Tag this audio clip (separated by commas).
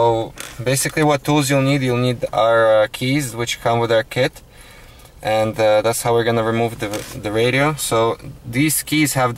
Speech